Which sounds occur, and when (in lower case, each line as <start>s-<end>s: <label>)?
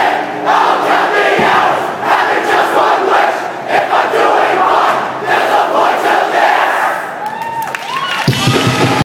0.0s-0.3s: battle cry
0.0s-9.0s: background noise
0.4s-1.9s: battle cry
1.3s-1.6s: music
2.0s-3.5s: battle cry
3.6s-5.1s: battle cry
5.2s-7.1s: battle cry
7.2s-8.3s: clapping
7.2s-9.0s: cheering
8.2s-9.0s: music